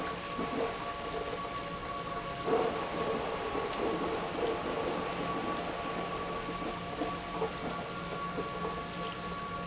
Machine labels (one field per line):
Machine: pump